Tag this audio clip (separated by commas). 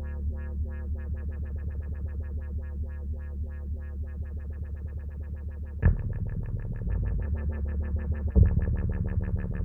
Sampler, Synthesizer